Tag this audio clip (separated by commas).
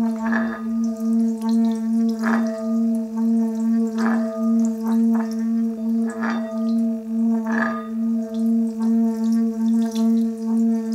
Singing bowl